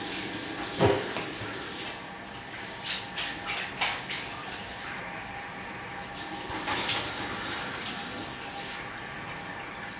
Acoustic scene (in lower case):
restroom